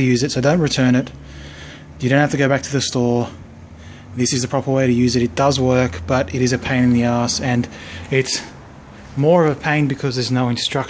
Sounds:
Speech

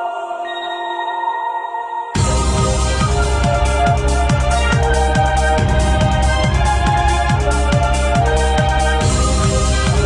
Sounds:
Music

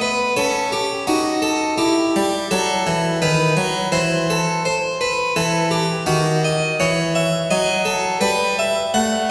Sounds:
playing harpsichord

